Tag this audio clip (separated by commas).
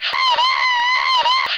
Screaming, Human voice